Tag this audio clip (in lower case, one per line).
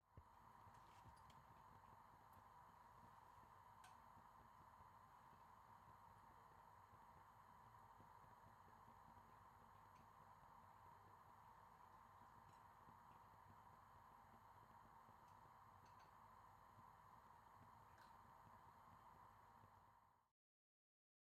fire